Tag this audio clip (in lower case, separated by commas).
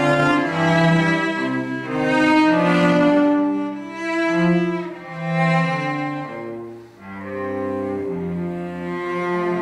cello, double bass, bowed string instrument